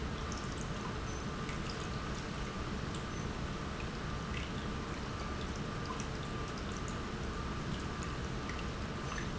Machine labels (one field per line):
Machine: pump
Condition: normal